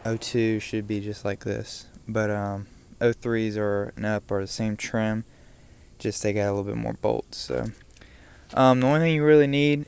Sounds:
speech

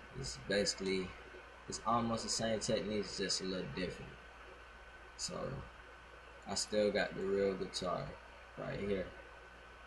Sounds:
speech

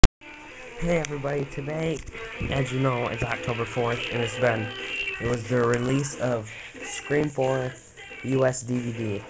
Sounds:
speech, music

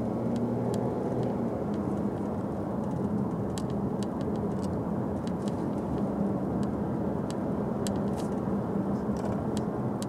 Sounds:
car, outside, rural or natural, vehicle

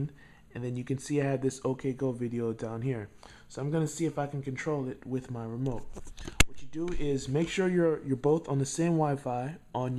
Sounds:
speech

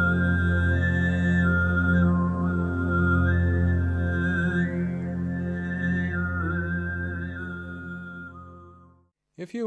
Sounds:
music, speech

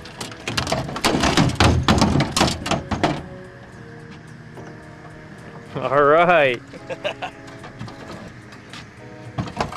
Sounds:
thwack, speech, music

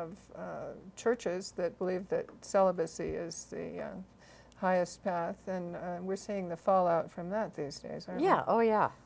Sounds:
speech, inside a small room

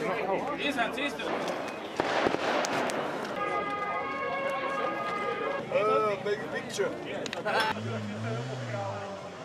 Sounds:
car, vehicle, speech, outside, urban or man-made

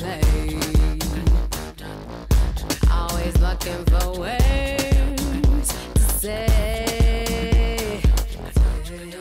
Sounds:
music, dance music

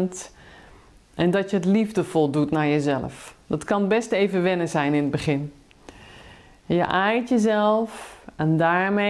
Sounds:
speech

